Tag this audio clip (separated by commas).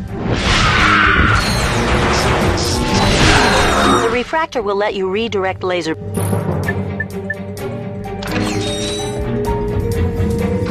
Music, Speech